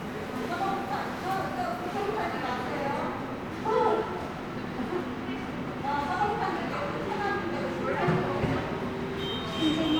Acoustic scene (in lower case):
subway station